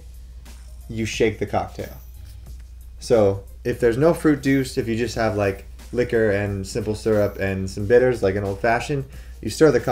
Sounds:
Speech, Music

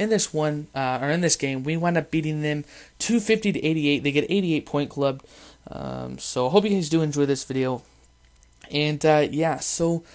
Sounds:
Speech

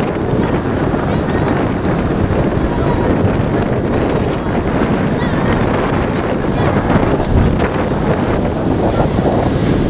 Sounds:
Vehicle, Water vehicle, Speech

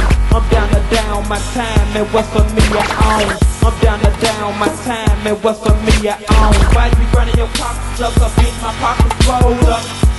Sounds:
Music

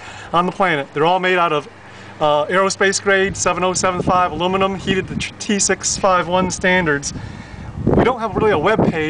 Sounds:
Speech

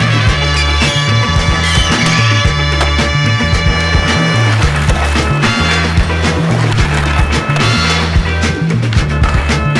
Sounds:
Music, Skateboard

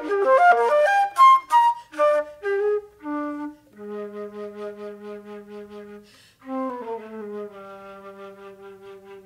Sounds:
Music, Musical instrument, inside a large room or hall, Bowed string instrument

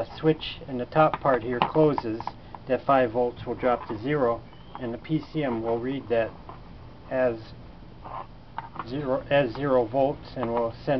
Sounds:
Speech

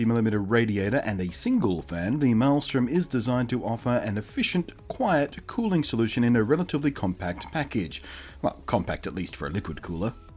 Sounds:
Speech

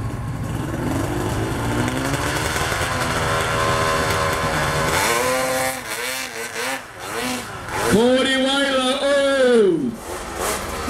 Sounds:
driving snowmobile

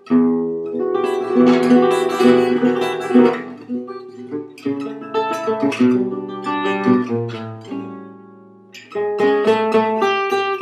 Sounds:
Music, Musical instrument, Guitar

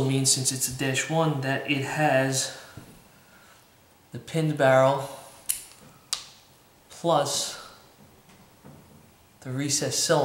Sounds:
Speech, inside a small room

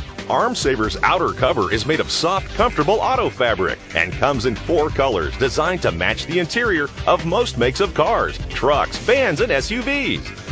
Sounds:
Speech, Music

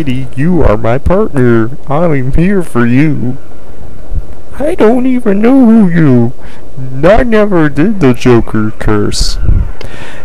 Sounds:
Speech

